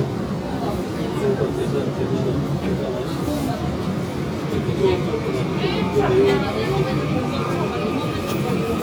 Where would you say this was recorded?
on a subway train